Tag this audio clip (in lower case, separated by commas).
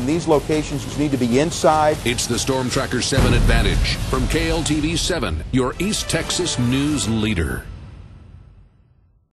music, speech